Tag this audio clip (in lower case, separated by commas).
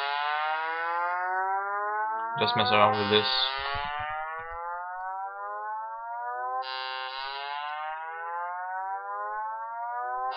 electronic music, music